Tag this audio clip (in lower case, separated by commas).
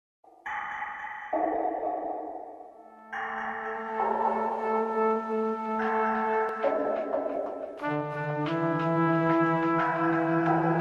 music, brass instrument, trombone